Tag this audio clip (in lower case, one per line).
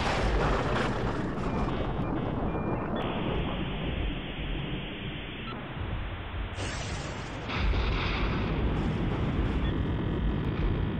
mouse clicking